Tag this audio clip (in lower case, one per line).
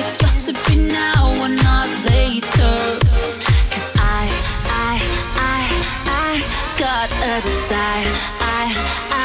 music